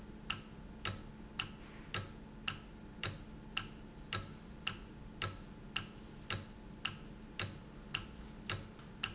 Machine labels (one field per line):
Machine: valve